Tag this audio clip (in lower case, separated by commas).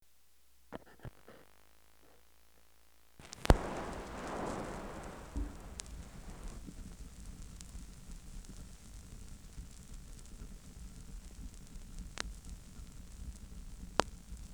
crackle